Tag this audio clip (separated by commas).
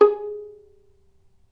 Bowed string instrument, Musical instrument, Music